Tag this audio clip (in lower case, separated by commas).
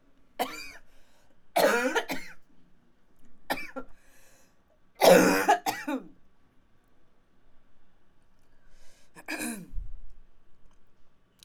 respiratory sounds, cough